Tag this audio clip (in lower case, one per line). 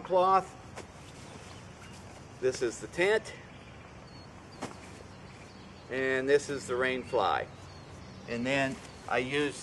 speech